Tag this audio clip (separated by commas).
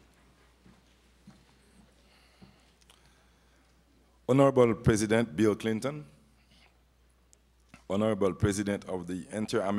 Male speech, Speech